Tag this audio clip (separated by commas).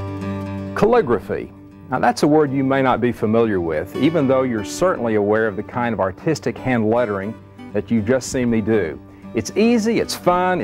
Speech, Music